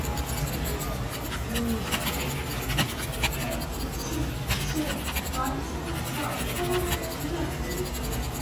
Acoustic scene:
crowded indoor space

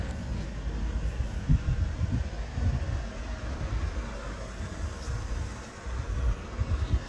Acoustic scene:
residential area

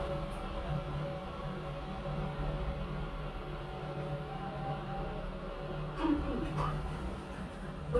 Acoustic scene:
elevator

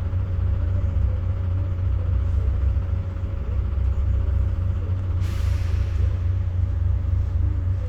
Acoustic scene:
bus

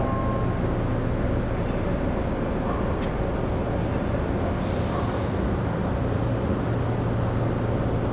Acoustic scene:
subway train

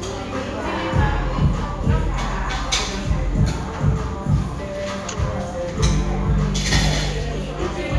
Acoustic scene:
cafe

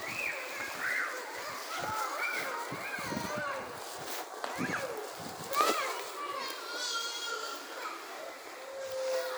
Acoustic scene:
residential area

